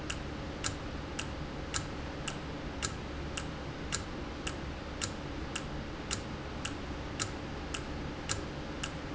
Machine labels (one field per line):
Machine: valve